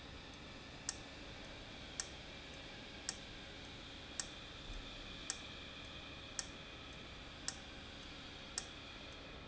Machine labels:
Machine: valve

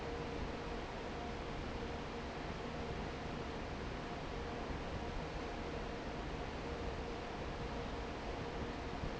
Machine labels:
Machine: fan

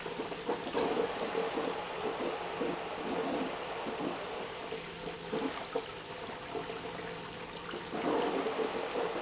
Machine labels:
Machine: pump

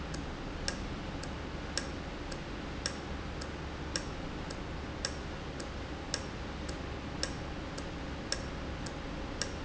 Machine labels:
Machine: valve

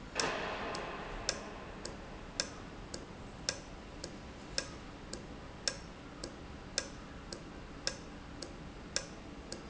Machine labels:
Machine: valve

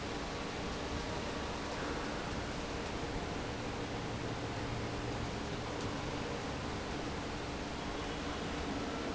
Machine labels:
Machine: fan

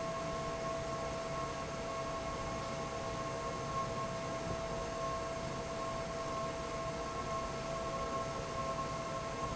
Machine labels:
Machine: fan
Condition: normal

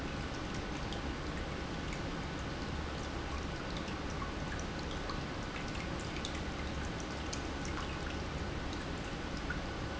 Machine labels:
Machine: pump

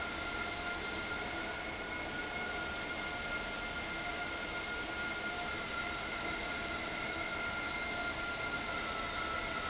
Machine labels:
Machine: fan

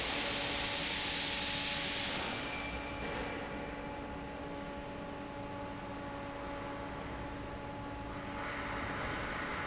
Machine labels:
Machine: fan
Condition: normal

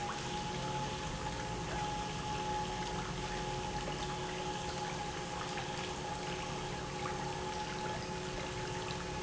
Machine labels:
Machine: pump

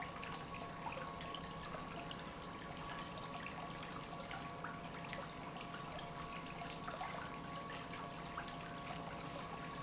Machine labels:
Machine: pump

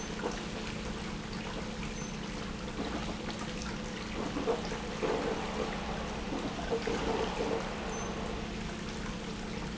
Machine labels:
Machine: pump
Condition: abnormal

